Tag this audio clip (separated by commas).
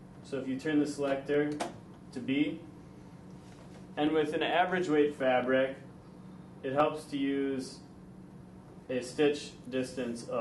Speech